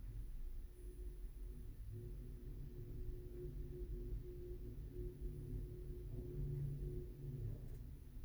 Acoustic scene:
elevator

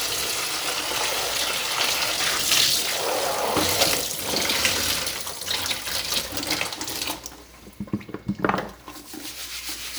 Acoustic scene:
kitchen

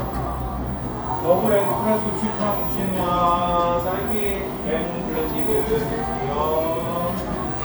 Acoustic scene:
cafe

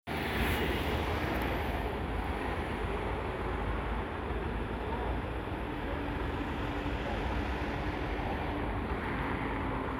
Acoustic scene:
street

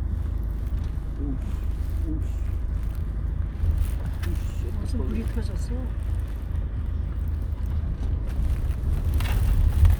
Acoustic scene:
car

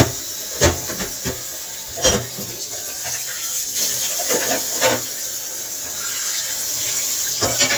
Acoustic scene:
kitchen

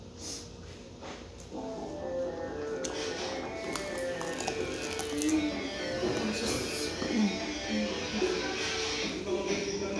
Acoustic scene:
restaurant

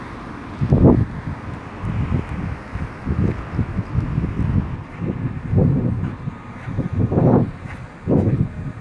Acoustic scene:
residential area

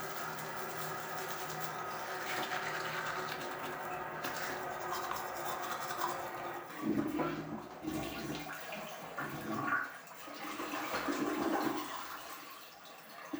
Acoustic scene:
restroom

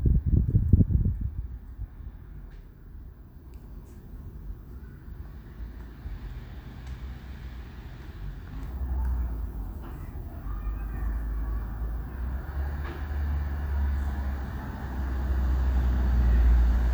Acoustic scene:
residential area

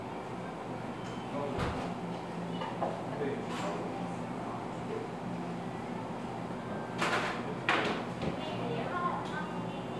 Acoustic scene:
cafe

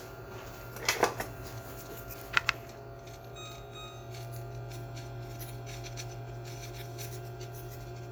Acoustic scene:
kitchen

